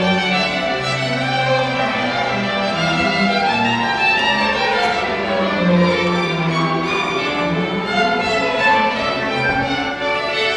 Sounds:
Music, Musical instrument, Violin

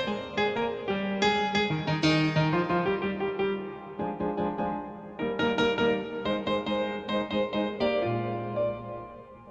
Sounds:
Piano, Music

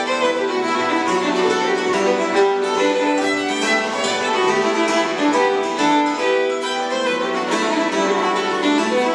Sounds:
Musical instrument, Music, fiddle

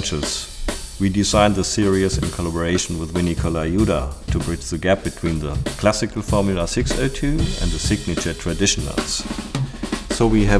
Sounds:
Hi-hat, Cymbal

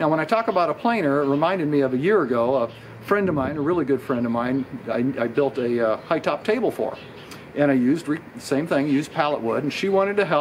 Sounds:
Speech

